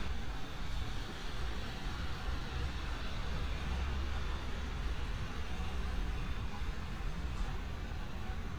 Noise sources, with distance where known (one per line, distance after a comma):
medium-sounding engine